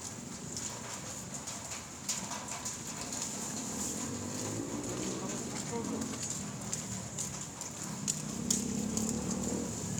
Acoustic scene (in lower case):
residential area